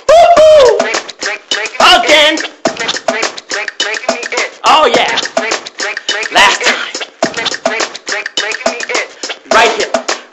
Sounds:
Speech, Music

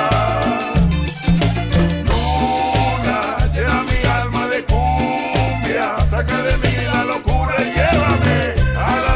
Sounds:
Music

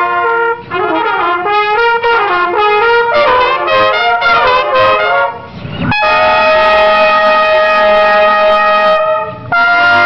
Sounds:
Musical instrument, Music, Trumpet

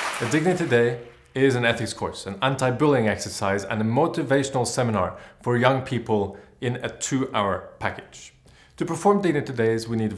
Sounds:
Speech

